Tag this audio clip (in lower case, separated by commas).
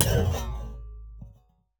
thud